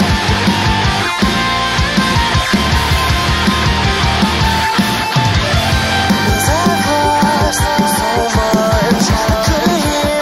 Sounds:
music

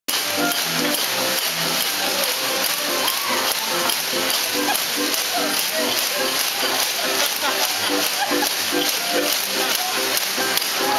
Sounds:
playing washboard

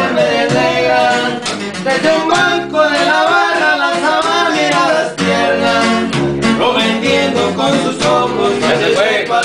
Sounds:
musical instrument
music

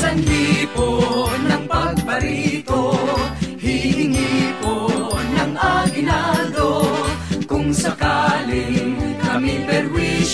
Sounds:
music

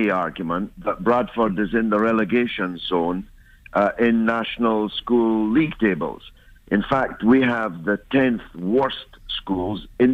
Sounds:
speech

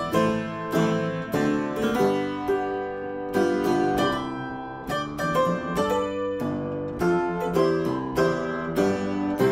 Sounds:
playing harpsichord

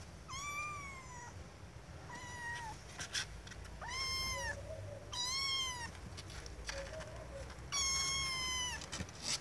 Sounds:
cat caterwauling

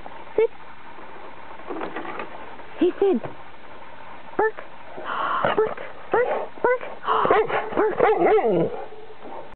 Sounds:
yip

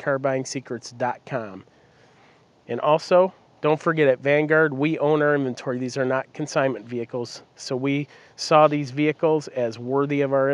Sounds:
speech

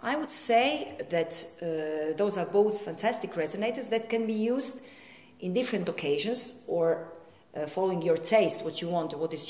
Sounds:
speech

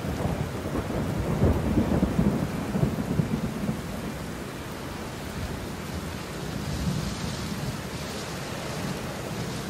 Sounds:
rain
thunderstorm
thunder

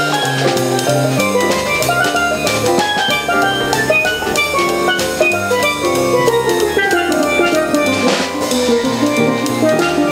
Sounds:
playing steelpan

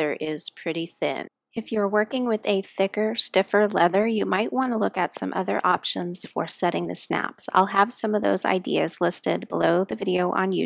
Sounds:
speech

